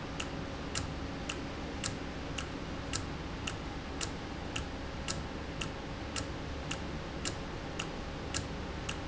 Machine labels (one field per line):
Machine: valve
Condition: normal